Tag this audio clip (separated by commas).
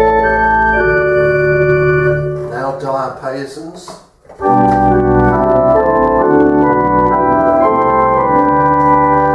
Organ, Musical instrument, Music, Speech, Piano, Keyboard (musical)